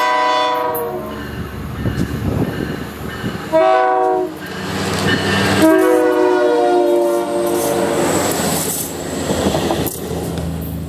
A train is chugging along and sounding its horn